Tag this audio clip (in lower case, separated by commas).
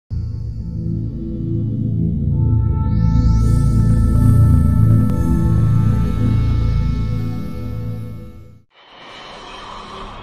electronic music, music